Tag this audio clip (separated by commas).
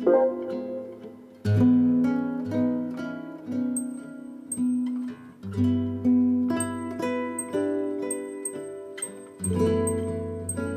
Music